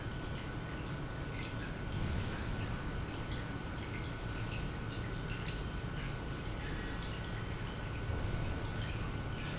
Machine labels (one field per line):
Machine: pump